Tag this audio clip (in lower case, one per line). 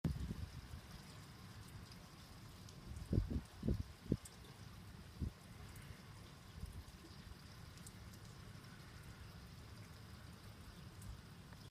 wind
water
rain